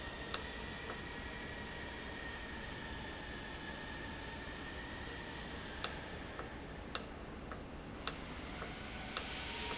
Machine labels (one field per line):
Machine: valve